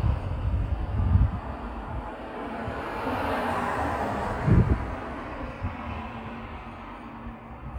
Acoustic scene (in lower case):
street